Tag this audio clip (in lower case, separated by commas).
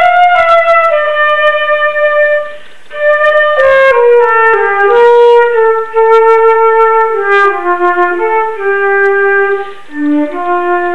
flute, music